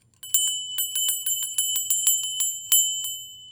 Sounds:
bell

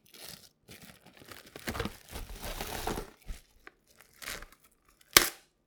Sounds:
crumpling

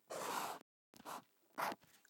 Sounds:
writing
domestic sounds

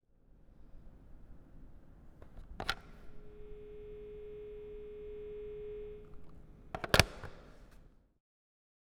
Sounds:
telephone
alarm

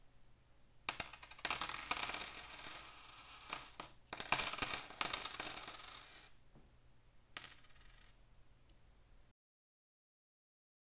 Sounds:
coin (dropping)
home sounds

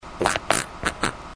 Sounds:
fart

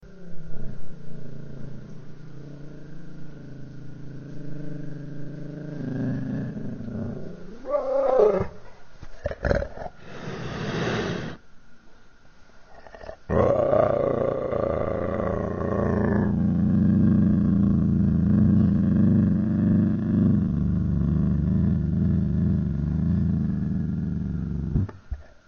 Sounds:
animal
growling

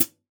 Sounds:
percussion
hi-hat
musical instrument
music
cymbal

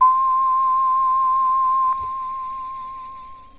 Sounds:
keyboard (musical)
music
musical instrument

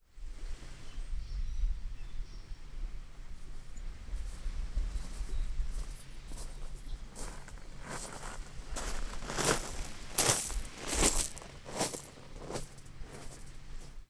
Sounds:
water
ocean
waves

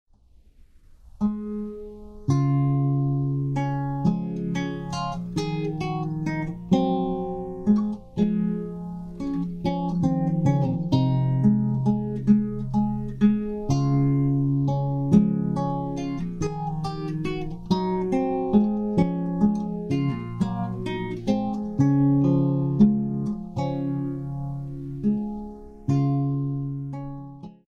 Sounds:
music
musical instrument
guitar
plucked string instrument

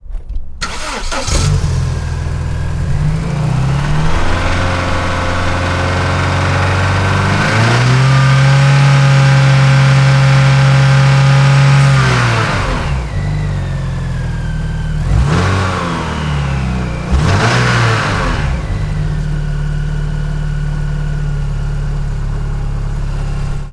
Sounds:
vehicle
engine
motor vehicle (road)
accelerating

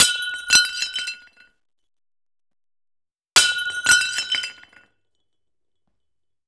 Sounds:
glass
shatter

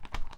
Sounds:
animal
wild animals
bird

